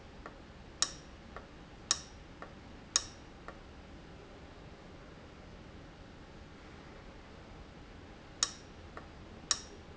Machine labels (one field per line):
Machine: valve